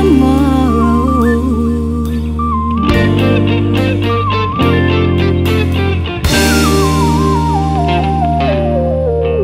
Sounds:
Music, Singing, Electric guitar

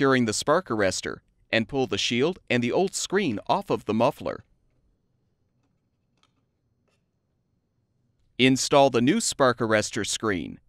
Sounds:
Speech

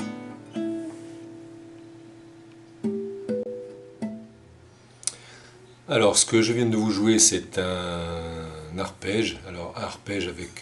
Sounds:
Speech, Music

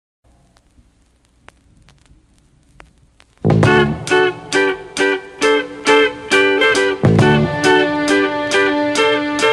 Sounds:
Music, Blues

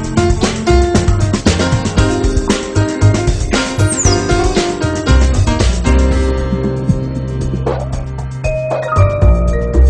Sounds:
Music

